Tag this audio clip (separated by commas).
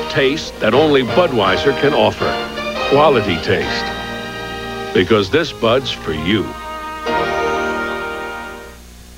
Music, Speech